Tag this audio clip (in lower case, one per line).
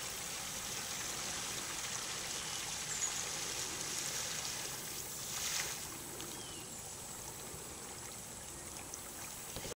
vehicle
water vehicle